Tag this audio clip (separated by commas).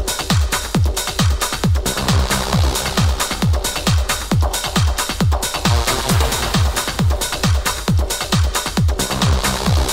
Music